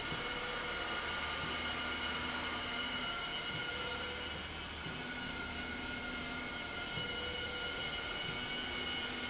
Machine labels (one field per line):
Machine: slide rail